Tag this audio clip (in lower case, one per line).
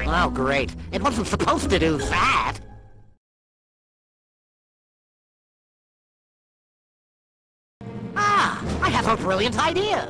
speech
music